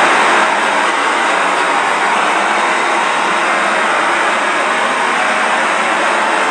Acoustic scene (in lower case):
subway station